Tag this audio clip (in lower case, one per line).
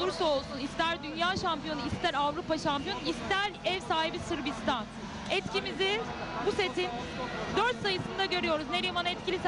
speech